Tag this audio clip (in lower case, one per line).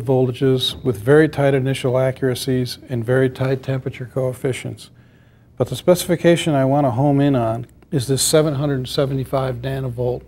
speech